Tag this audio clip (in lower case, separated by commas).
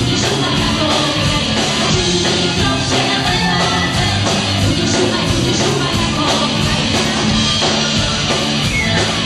music